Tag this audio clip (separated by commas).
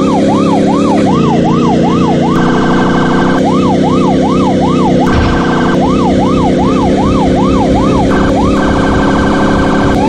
Vehicle, Police car (siren), Car